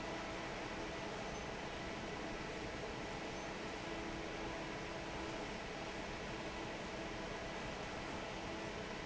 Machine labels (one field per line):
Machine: fan